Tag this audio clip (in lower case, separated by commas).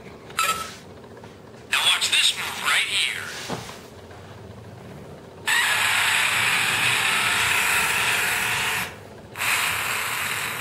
speech